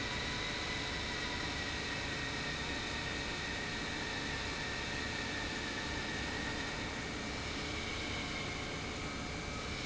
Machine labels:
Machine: pump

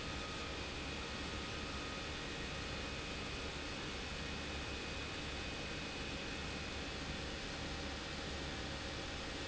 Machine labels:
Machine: pump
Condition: abnormal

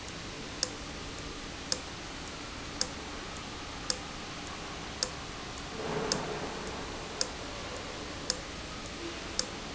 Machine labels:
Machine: valve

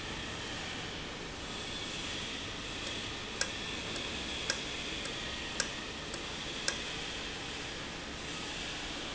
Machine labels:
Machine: valve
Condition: normal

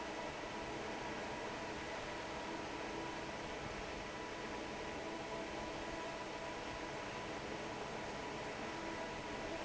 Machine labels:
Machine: fan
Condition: normal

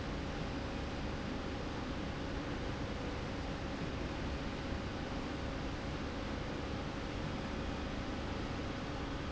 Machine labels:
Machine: slide rail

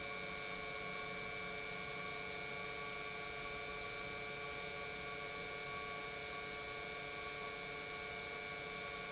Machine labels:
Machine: pump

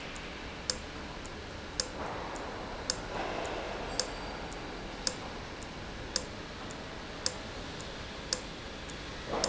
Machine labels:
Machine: valve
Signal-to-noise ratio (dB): -6 dB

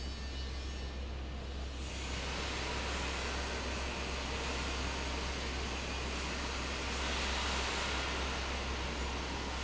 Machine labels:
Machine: fan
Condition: abnormal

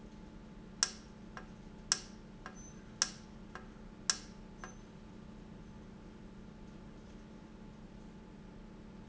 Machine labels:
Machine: valve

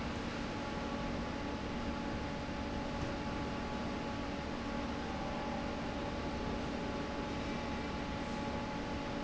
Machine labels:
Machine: fan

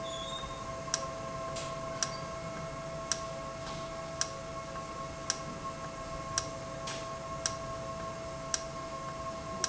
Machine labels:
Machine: valve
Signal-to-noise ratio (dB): -6 dB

